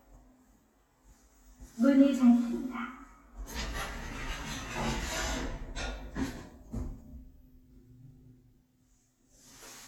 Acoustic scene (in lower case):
elevator